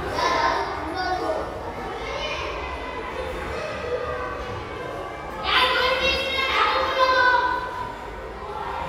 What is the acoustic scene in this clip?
crowded indoor space